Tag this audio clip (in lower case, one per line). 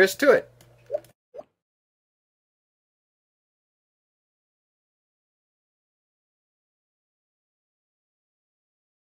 silence
speech